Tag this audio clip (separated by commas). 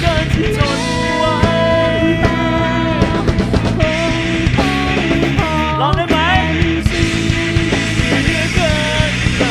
Music